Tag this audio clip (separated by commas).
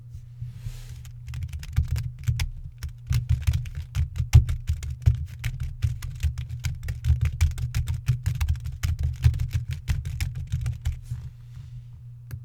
Typing, Domestic sounds